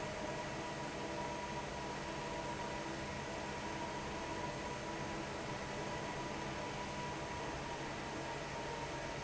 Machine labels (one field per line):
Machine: fan